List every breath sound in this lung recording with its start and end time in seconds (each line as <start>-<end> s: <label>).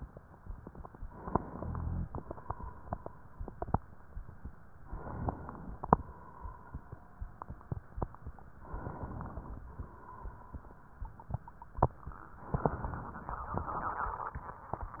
1.07-2.06 s: inhalation
1.50-2.10 s: rhonchi
2.04-3.69 s: exhalation
4.87-5.85 s: inhalation
5.87-7.30 s: exhalation
8.61-9.59 s: inhalation
9.59-10.87 s: exhalation
12.45-13.41 s: inhalation